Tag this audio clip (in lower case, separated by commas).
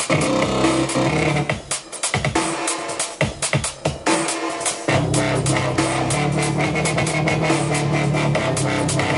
music, dubstep